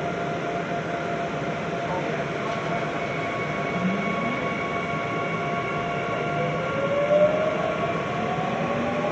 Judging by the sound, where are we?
on a subway train